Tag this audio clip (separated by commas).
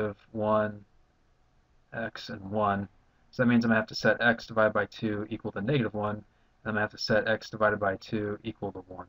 inside a small room, Speech